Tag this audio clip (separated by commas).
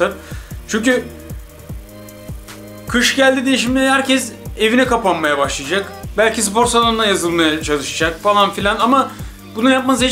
Speech, Music